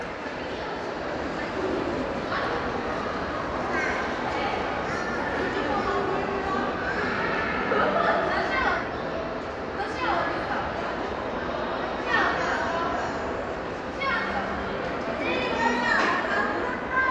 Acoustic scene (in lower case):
crowded indoor space